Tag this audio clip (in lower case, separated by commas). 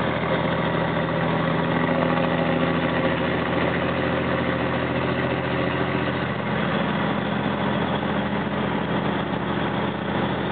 vehicle